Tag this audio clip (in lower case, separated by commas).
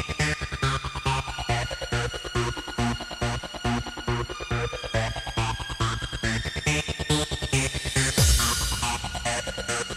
techno, trance music, music, electronic music